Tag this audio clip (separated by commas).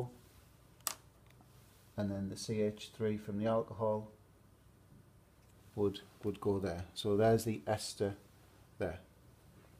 Speech